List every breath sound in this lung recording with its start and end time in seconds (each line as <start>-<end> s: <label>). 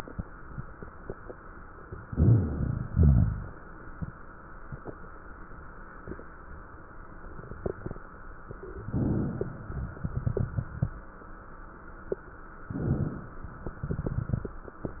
1.86-2.88 s: inhalation
1.86-2.88 s: crackles
2.90-4.66 s: exhalation
2.90-4.66 s: crackles
8.39-9.95 s: crackles
8.41-9.99 s: inhalation
9.97-11.65 s: exhalation
9.97-11.65 s: crackles
12.58-13.78 s: inhalation
12.58-13.78 s: crackles
13.78-15.00 s: exhalation
13.78-15.00 s: crackles